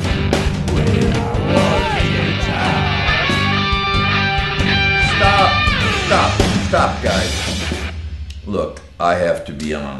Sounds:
Music, Speech

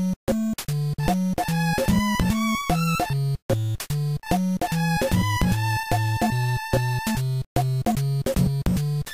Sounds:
Music

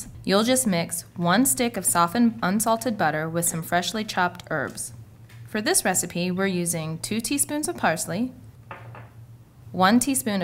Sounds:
Speech

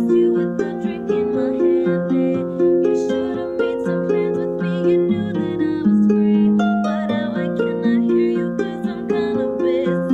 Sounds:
Music

